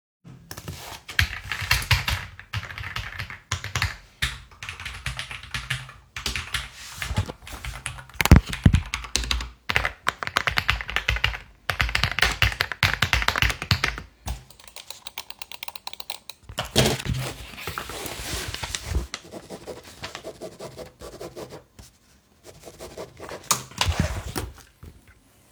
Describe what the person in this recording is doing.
I was writing math formulas on my notepad and i opened messenger to text on my computer